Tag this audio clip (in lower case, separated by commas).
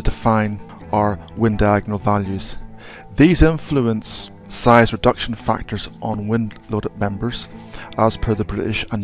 speech, music